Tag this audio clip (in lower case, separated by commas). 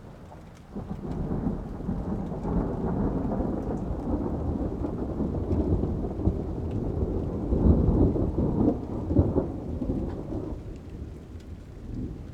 thunderstorm, thunder